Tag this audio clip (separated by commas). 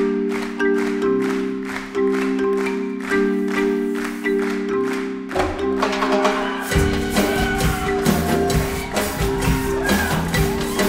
Percussion, Music